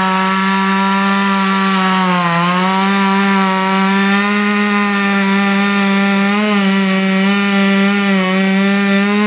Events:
[0.00, 9.25] chainsaw

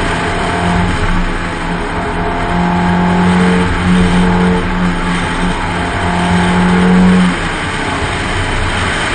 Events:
[0.00, 9.14] motor vehicle (road)

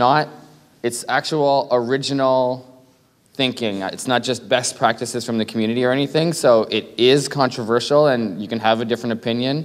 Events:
[0.00, 0.28] male speech
[0.00, 9.64] background noise
[0.77, 2.61] male speech
[2.59, 3.32] breathing
[3.37, 9.62] male speech

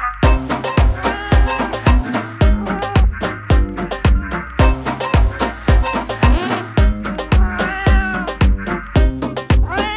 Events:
[0.00, 9.95] music
[1.04, 1.63] cat
[2.67, 3.03] cat
[7.43, 8.25] cat
[9.64, 9.95] cat

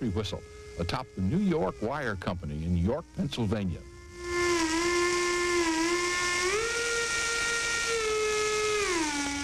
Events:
[0.00, 9.43] background noise
[0.00, 9.43] steam whistle

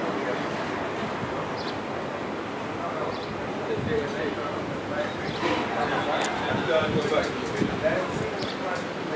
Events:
[0.00, 9.15] background noise
[1.57, 1.76] chirp
[2.77, 9.15] male speech
[3.08, 3.32] chirp
[5.20, 5.38] chirp
[8.34, 8.58] chirp

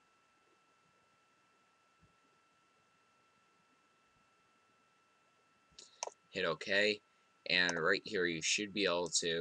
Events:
[0.00, 9.40] mechanisms
[5.79, 5.90] tick
[6.02, 6.14] tick
[6.34, 6.97] male speech
[7.49, 9.40] male speech
[7.71, 7.78] tick

